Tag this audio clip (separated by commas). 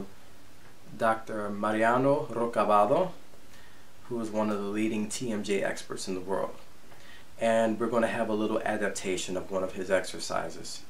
Speech